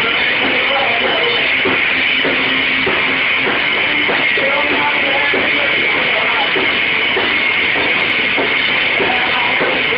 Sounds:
thump, music

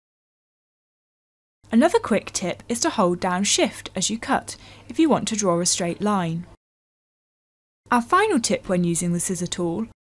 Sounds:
speech

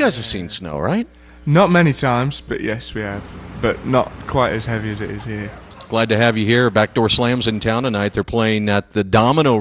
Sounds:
speech

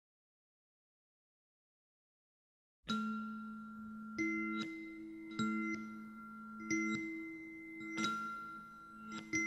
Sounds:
musical instrument, music

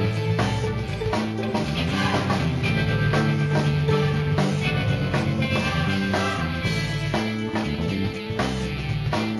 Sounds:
video game music, music

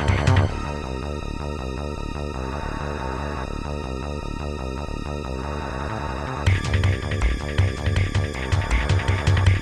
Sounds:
music

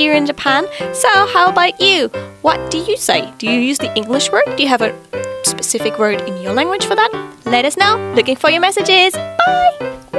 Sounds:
music, speech

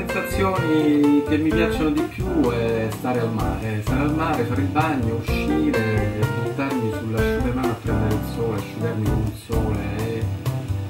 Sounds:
music, speech, man speaking

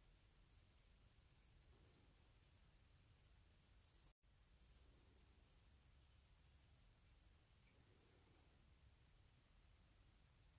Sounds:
owl hooting

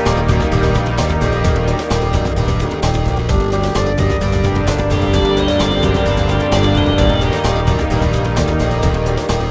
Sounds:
music

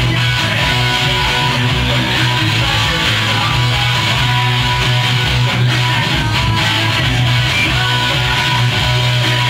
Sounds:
plucked string instrument, playing electric guitar, strum, musical instrument, music, electric guitar, guitar

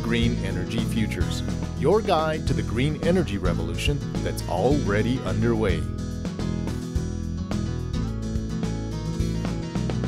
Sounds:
music, speech

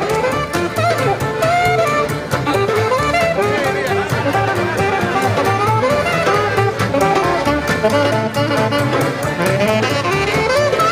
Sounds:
speech, music, jazz

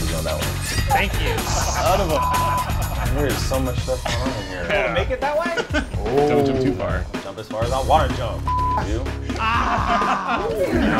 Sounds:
speech, music

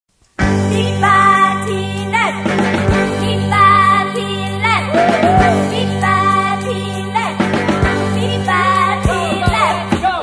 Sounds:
music, jingle (music)

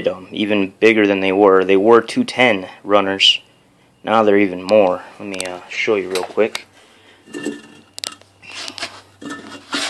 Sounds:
speech

